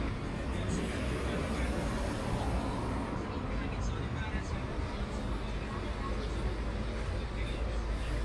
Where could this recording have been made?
on a street